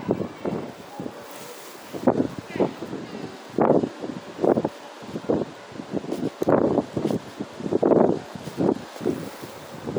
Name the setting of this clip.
residential area